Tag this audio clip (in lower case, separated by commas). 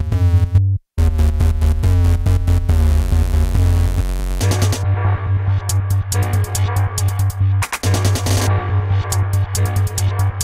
music, electronic music